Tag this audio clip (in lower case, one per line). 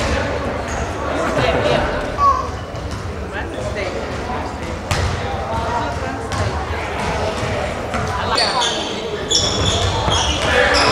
speech
basketball bounce